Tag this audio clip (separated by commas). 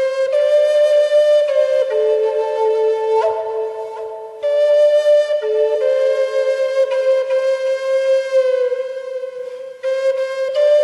Flute, Music